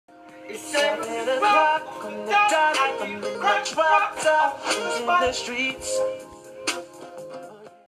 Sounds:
Music

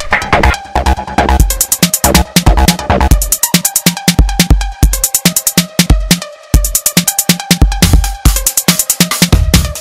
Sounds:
Music, Electronic music

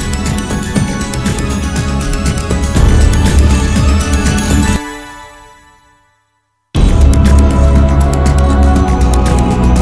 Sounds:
Music

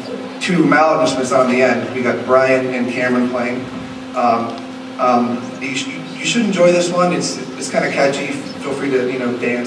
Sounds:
Speech

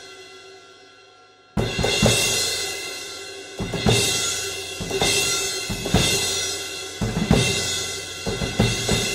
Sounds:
Snare drum, Music

